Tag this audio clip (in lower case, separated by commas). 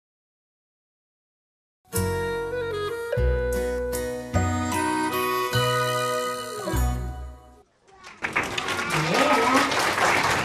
speech, music